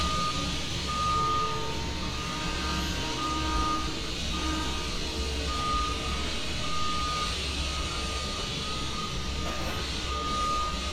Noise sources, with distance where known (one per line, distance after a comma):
large-sounding engine, near
reverse beeper, near